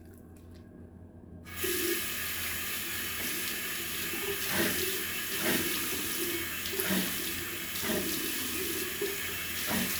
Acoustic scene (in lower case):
restroom